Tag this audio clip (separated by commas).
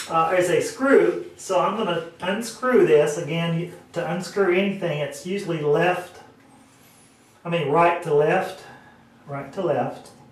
Speech